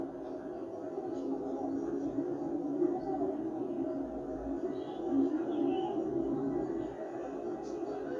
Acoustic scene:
park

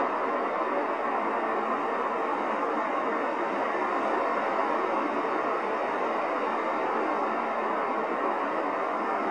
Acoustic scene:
street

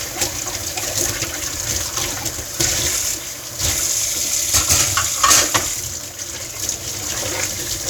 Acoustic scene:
kitchen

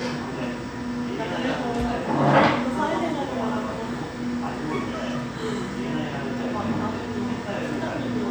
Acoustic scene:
cafe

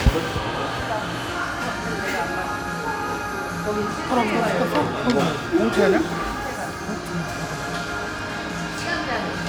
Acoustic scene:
crowded indoor space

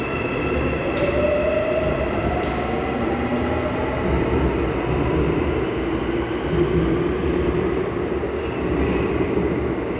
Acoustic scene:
subway station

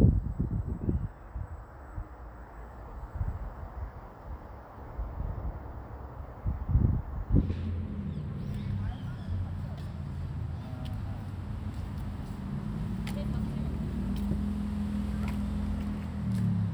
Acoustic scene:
residential area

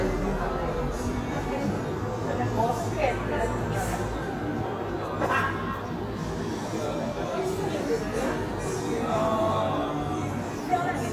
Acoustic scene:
cafe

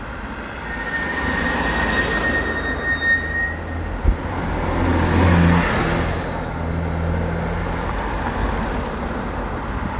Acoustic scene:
street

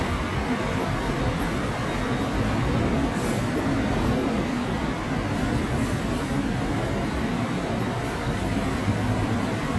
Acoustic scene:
subway station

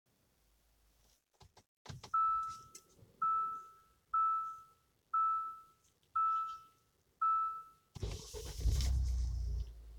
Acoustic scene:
car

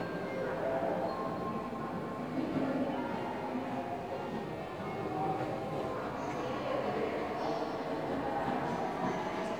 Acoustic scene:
subway station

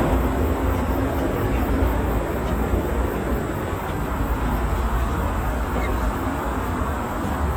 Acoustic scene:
park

